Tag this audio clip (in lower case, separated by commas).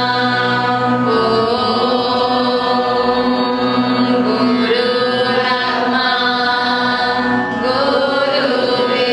mantra, music